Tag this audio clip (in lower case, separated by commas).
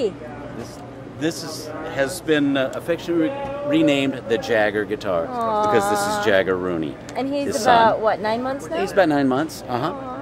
speech